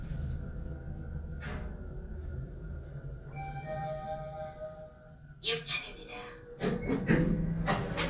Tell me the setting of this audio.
elevator